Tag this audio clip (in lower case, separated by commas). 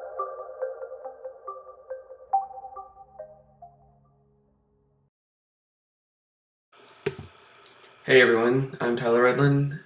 music, speech